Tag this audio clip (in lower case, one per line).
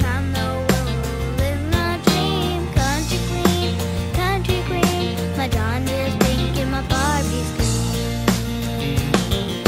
music